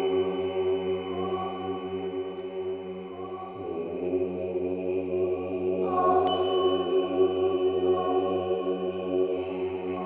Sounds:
music

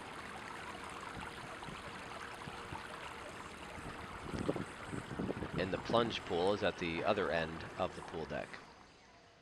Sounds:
outside, urban or man-made
speech

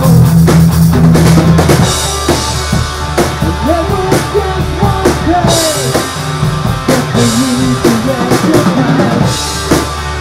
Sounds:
music
drum
musical instrument
rimshot

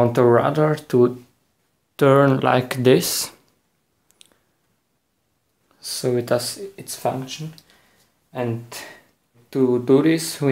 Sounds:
speech

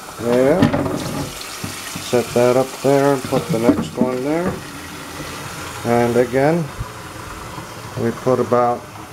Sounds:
water
sink (filling or washing)

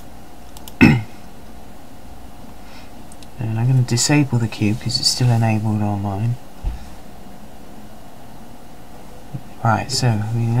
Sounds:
speech

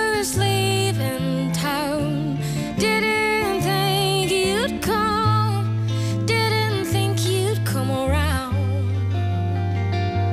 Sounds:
music

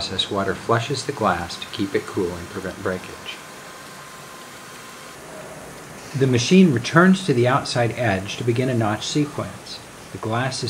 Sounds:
speech

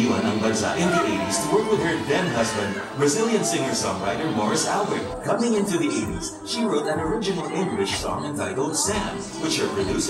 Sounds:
music
speech

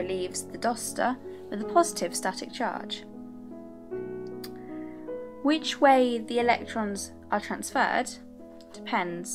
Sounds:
music
speech

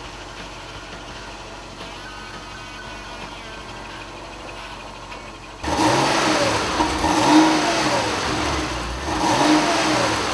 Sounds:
music
car
vehicle

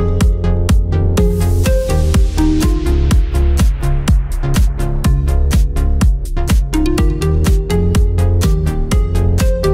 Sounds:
music

